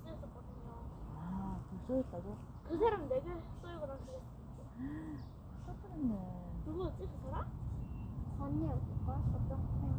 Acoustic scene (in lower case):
park